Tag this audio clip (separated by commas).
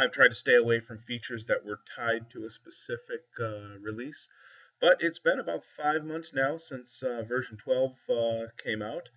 Speech